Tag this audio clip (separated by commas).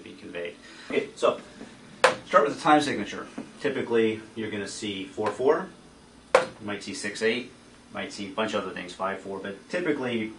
Speech